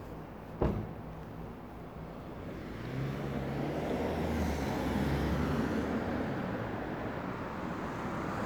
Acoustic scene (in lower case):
residential area